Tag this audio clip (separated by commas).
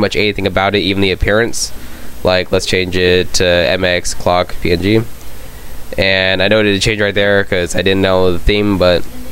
Speech